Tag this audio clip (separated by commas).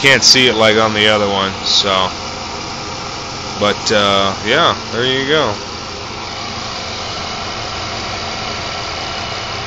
Engine, Speech